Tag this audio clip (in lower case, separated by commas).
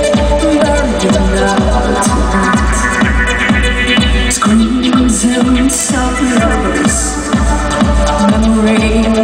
music